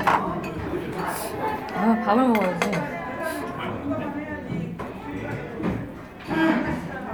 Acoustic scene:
crowded indoor space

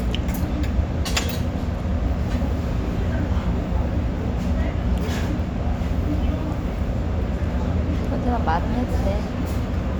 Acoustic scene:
restaurant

